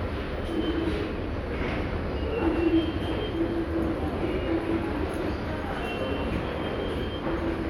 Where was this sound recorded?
in a subway station